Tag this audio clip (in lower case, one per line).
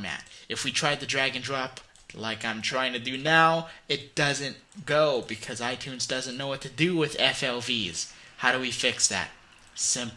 speech